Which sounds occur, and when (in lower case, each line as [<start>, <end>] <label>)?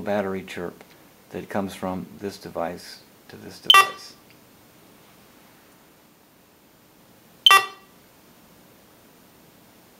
[0.00, 0.68] male speech
[0.00, 9.95] mechanisms
[0.74, 0.81] tick
[0.87, 0.95] tick
[1.27, 3.04] male speech
[3.21, 4.18] male speech
[3.23, 3.30] tick
[3.70, 4.11] alarm
[4.24, 4.33] tick
[7.45, 7.90] alarm